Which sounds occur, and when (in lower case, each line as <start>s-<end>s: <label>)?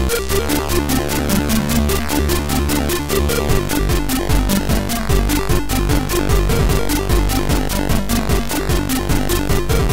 0.0s-9.9s: music